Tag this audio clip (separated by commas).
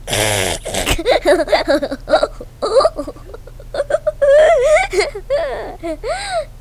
Human voice, Laughter